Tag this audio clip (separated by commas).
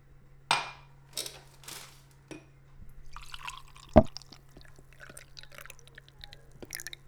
Liquid